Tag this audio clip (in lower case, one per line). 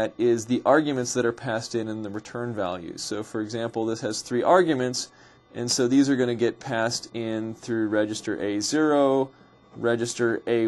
speech